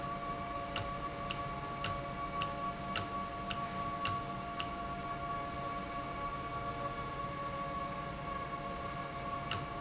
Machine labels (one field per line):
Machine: valve